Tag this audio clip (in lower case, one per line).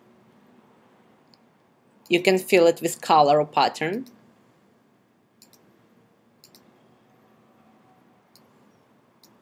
speech